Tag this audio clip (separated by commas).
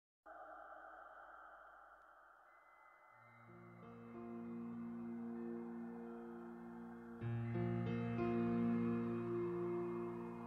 Music